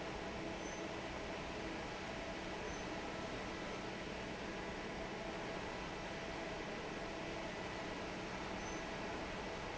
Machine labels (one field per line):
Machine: fan